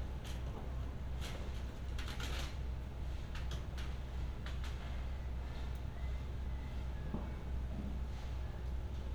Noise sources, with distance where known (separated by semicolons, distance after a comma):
background noise